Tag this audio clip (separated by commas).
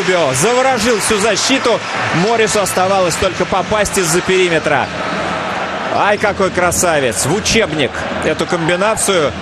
Speech